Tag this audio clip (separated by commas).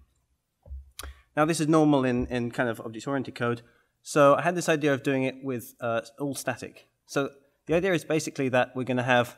Speech